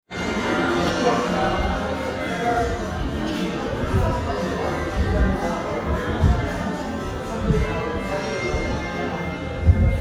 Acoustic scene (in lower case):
crowded indoor space